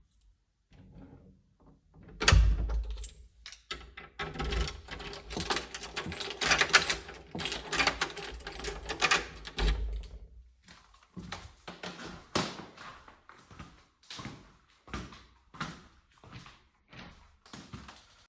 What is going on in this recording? I closed the door after I got inside my room, closed the door lock and walked further.